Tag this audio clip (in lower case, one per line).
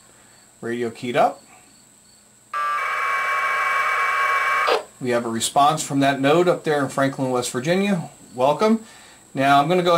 speech